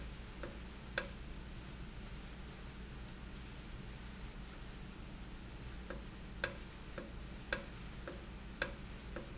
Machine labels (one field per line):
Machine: valve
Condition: normal